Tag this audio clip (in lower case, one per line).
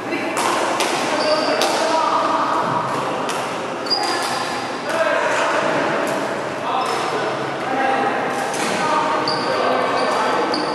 playing badminton